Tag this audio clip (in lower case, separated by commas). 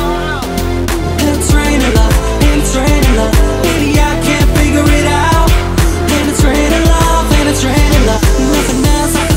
exciting music, music